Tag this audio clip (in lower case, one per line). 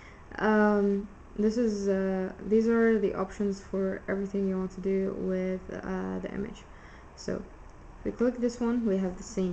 speech